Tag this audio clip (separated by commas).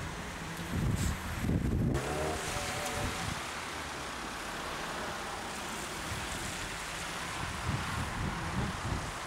Wind noise (microphone), Wind